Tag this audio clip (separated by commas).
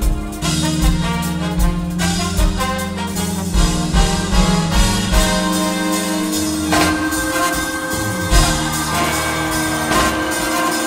Music